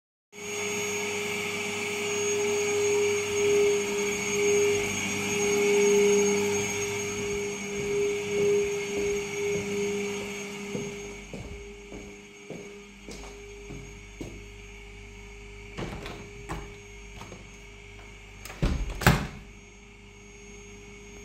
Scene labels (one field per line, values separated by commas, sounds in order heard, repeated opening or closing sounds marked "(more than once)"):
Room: living room, hallway, kitchen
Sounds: vacuum cleaner, footsteps, window (more than once)